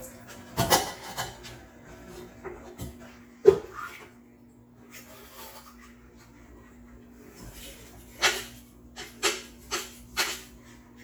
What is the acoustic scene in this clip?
kitchen